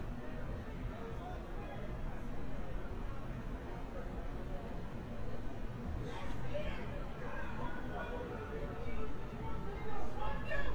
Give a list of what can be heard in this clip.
person or small group shouting